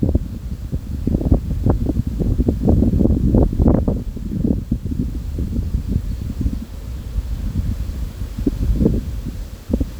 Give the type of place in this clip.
park